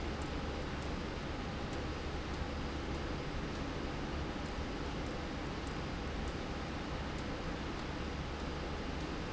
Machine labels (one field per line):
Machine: slide rail